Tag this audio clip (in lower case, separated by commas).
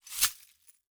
glass